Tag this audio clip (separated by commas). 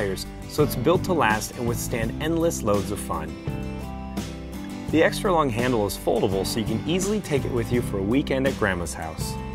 Speech, Music